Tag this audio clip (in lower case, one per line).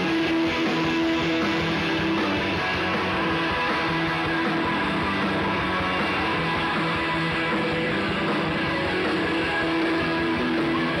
music